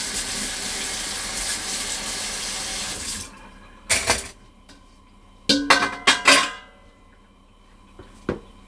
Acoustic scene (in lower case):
kitchen